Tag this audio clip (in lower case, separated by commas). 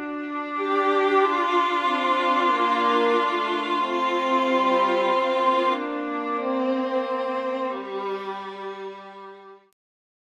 music, bowed string instrument